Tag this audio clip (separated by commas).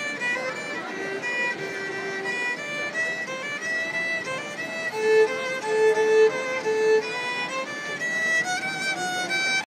Speech, Music, fiddle, Musical instrument